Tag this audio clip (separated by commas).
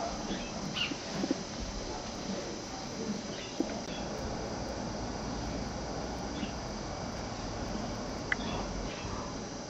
dove, Coo